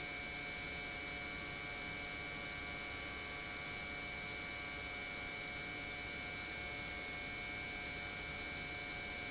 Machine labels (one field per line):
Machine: pump